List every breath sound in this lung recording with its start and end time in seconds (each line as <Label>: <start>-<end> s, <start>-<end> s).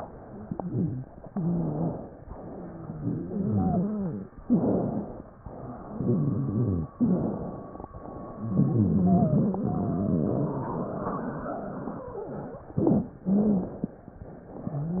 Inhalation: 1.31-2.20 s, 4.42-5.35 s, 7.00-7.93 s, 12.73-13.21 s
Exhalation: 0.25-1.08 s, 2.26-4.35 s, 5.45-6.91 s, 7.97-12.11 s, 13.26-13.97 s
Wheeze: 0.25-1.08 s, 1.31-2.20 s, 2.41-4.35 s, 4.42-5.35 s, 5.88-6.91 s, 6.96-7.40 s, 8.31-12.05 s, 12.73-13.21 s, 13.26-13.76 s